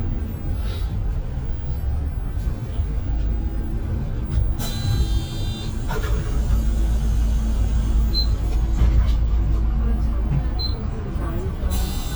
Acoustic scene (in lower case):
bus